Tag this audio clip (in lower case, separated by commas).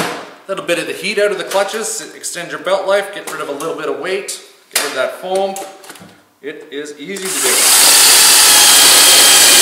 speech, inside a large room or hall